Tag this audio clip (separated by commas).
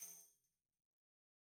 Tambourine, Percussion, Music, Musical instrument